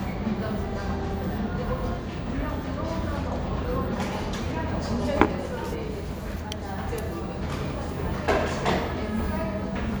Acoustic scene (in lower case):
cafe